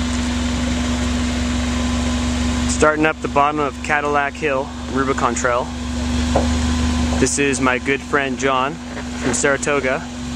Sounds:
truck
speech
vehicle

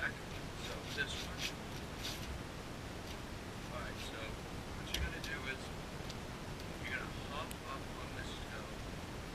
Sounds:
shuffle
speech

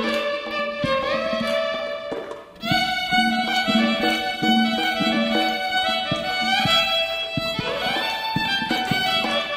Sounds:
musical instrument
music
violin

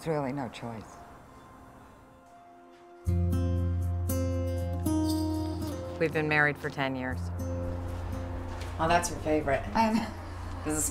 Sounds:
speech
music

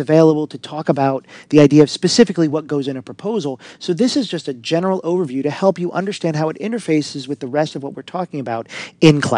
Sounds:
speech

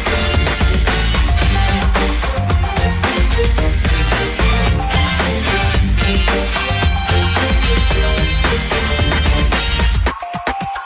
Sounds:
music

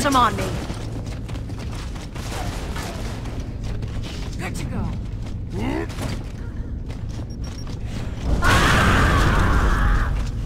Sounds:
speech

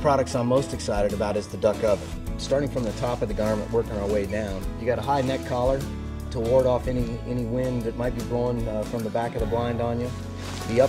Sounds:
music
speech

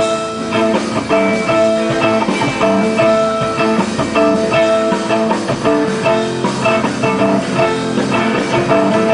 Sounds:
music

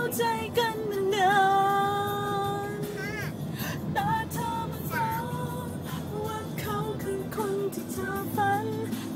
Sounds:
music
speech
car
vehicle

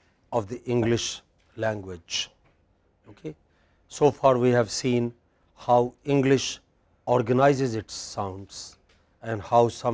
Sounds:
speech

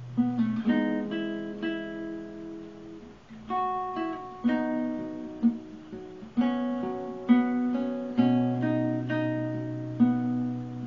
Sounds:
music

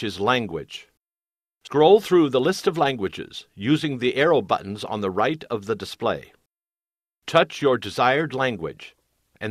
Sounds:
speech

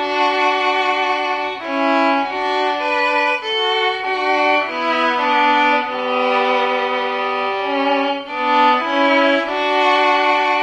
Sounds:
violin
music
musical instrument

